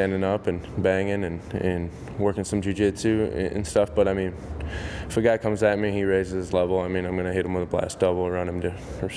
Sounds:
speech

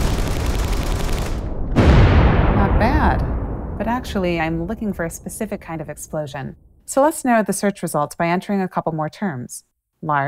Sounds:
sound effect, speech

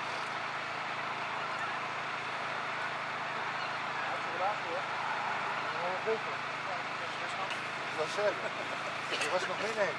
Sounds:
vehicle, speech

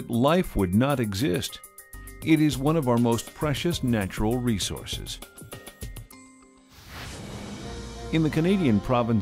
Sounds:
speech, music

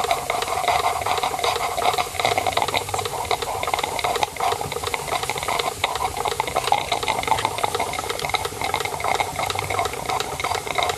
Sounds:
steam, engine

